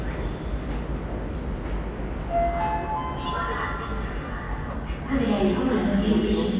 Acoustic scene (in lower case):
subway station